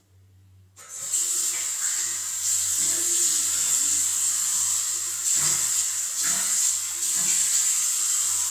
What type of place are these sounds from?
restroom